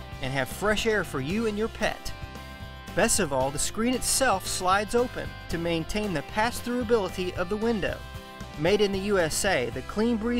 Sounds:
Music, Speech

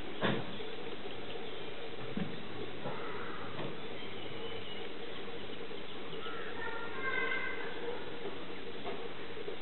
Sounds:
Speech

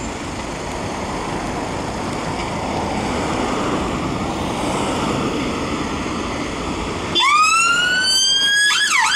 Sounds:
Waves, Police car (siren)

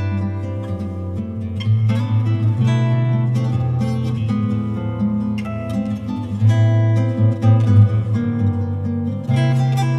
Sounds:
Music

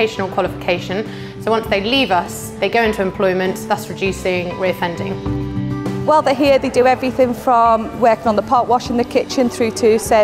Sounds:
Music, Speech

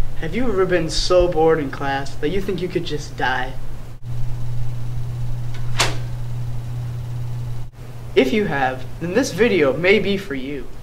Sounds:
inside a large room or hall, Speech

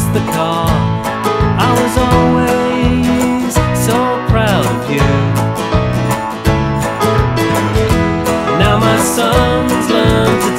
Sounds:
Music

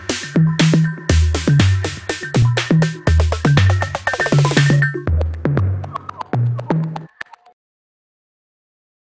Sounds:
Music, Percussion

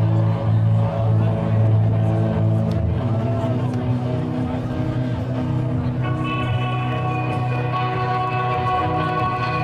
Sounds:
Music, Musical instrument, Plucked string instrument, Strum, Guitar

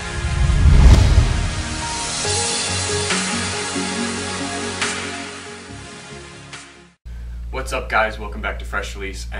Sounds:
Speech, Music

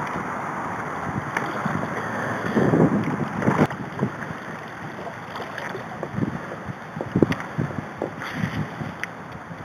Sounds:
canoe, Water vehicle

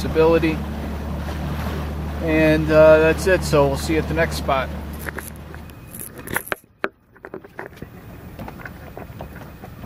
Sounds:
Speech

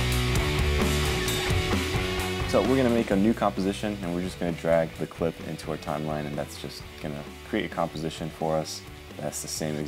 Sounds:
Speech, Music

